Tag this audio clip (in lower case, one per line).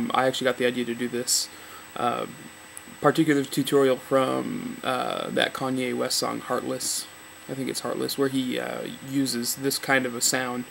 speech